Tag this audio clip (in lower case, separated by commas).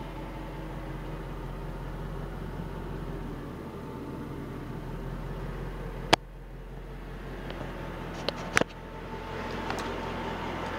vehicle